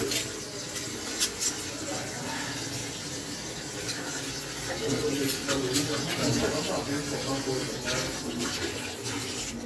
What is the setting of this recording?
kitchen